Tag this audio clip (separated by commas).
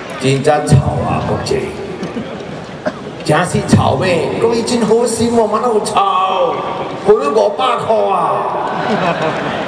Speech, Narration, Male speech